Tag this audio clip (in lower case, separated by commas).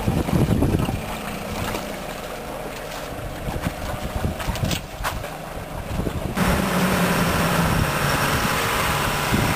speedboat, vehicle